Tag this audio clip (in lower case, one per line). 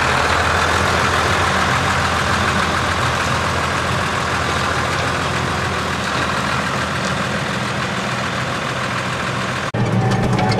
truck
vehicle